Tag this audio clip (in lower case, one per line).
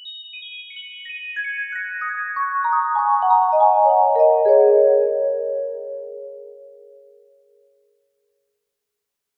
percussion
musical instrument
music
mallet percussion